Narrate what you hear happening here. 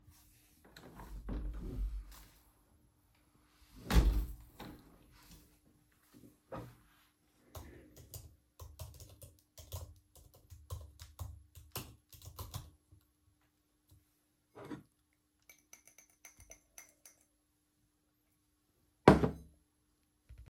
i close the window and sit down to type on my laptop and pick up the mug and do a little tap on it, drinks some water and puts the cup back down